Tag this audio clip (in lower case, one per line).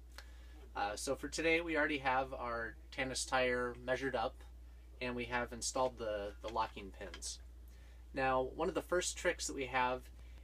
speech